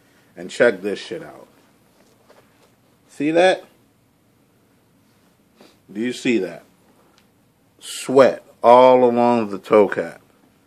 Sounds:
speech

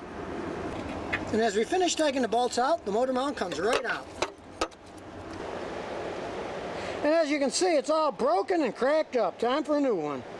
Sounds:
speech

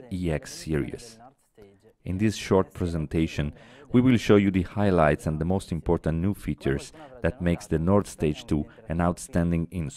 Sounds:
speech

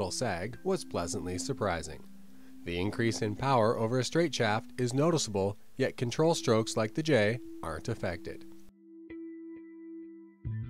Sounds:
speech

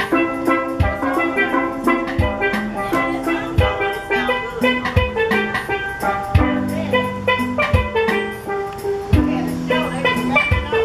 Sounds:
playing steelpan

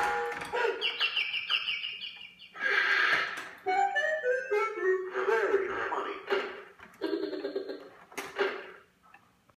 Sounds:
speech
tick
tick-tock
music

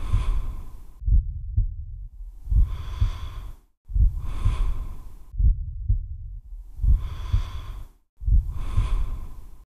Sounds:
snort

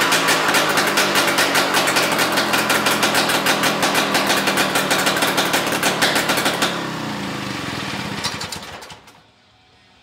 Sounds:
engine
inside a large room or hall

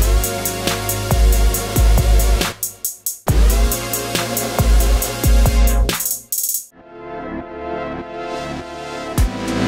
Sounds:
playing synthesizer

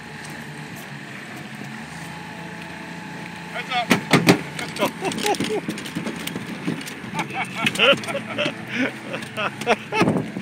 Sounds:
outside, rural or natural
speech
water vehicle

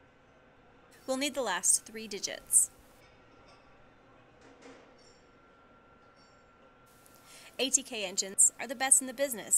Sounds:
speech

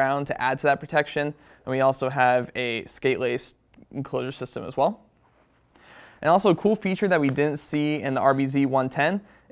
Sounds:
speech

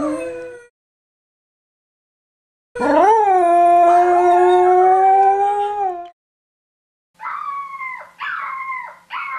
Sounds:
dog howling

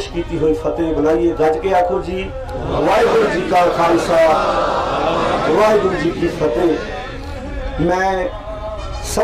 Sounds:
narration
male speech
speech

